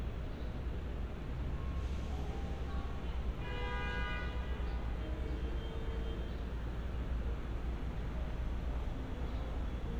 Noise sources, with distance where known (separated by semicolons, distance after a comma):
car horn, near